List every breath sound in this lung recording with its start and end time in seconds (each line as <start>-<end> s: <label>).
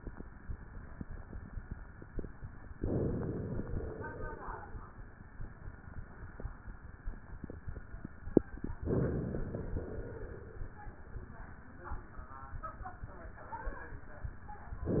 2.75-3.66 s: inhalation
3.65-4.79 s: exhalation
8.71-9.76 s: inhalation
9.73-10.78 s: exhalation
14.86-15.00 s: inhalation